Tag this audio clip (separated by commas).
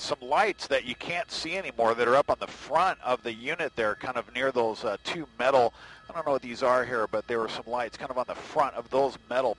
Speech